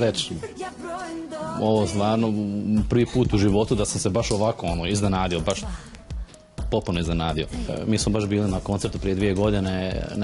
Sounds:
music
speech

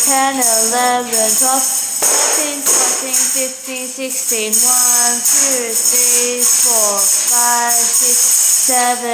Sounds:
music
speech
tambourine

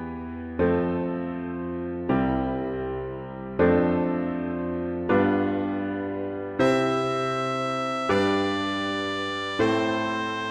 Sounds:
music
trumpet
musical instrument
tender music

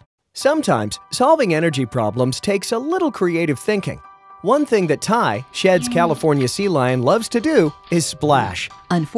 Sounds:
music
speech

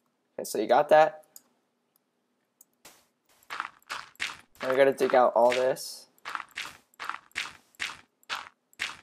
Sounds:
speech

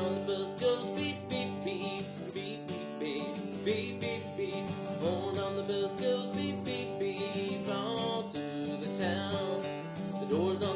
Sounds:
music

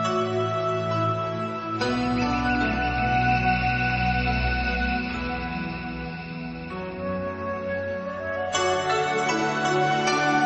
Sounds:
music

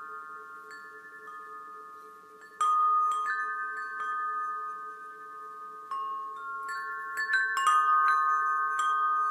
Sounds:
chime
wind chime

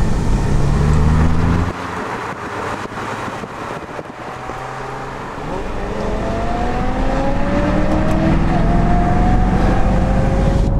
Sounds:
vehicle
auto racing
car

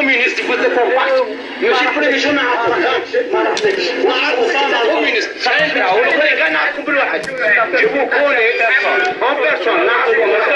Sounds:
speech

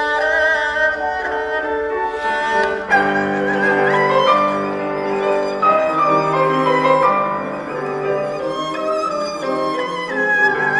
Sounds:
playing erhu

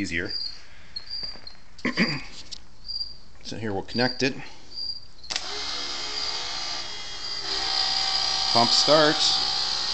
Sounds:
speech

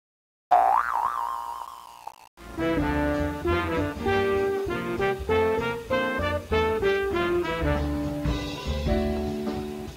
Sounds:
music
boing

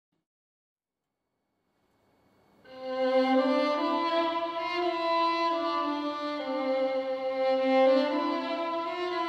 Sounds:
music
bowed string instrument
fiddle

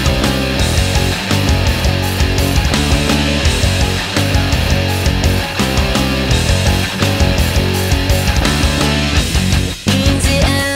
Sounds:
music

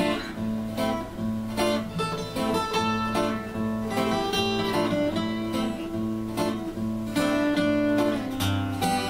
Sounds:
plucked string instrument
guitar
musical instrument
acoustic guitar
music

